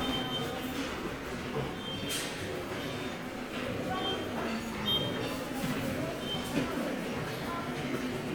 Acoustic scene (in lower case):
subway station